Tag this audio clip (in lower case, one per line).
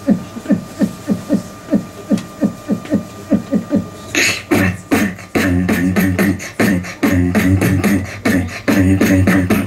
beatboxing
vocal music